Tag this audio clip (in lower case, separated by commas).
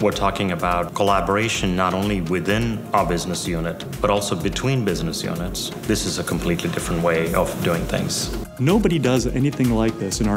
music, speech